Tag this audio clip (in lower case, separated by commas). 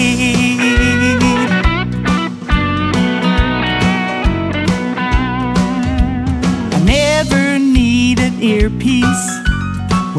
singing, electric guitar, music